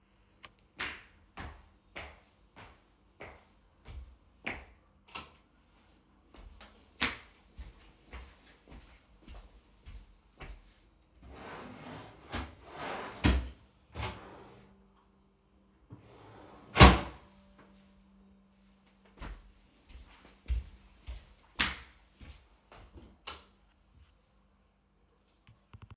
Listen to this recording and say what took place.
I walked to the room, turned on the lights then walked to the closet and opened the drawers. I then closed the drawers, walked back to the door and switched off the light.